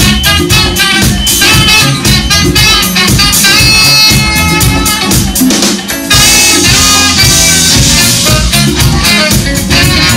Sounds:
music, jazz

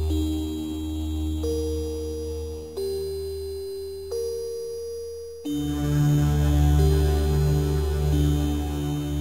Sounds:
chime, music

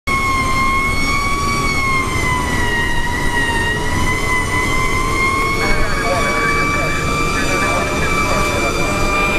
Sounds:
fire engine, vehicle, emergency vehicle

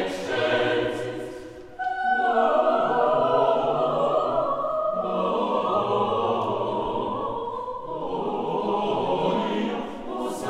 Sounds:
music

